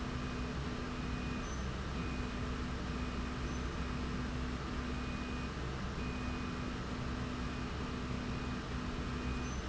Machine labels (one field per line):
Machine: slide rail